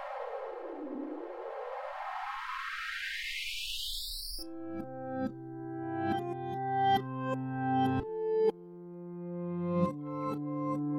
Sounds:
Music, Sound effect

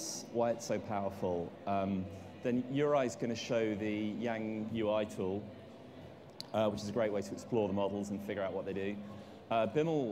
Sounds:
Speech

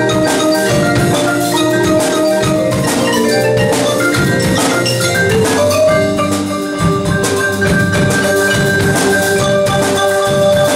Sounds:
Music, Percussion

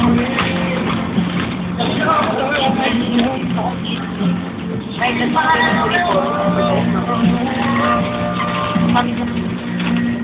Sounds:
Speech, Music, Vehicle, Bus

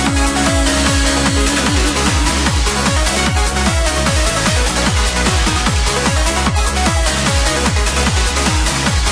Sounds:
Music

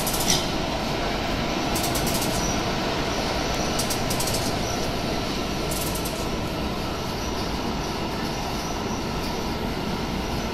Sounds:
Vehicle, Train

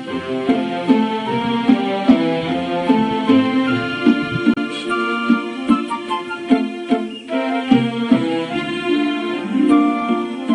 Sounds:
Music

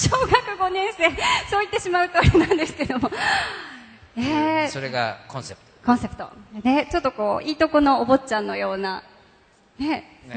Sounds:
Speech

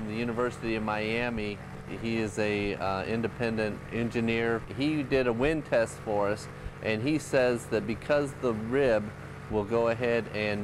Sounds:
Speech

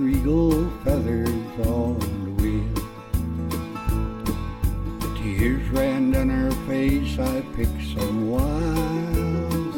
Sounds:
Music

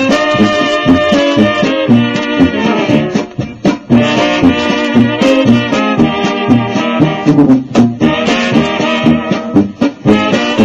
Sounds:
Radio, Music

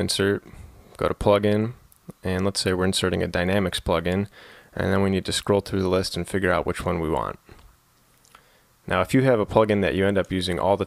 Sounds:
Speech

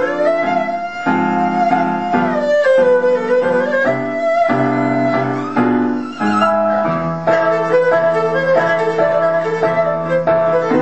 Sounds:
playing erhu

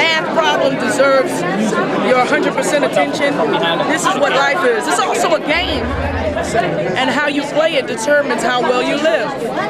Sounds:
Speech

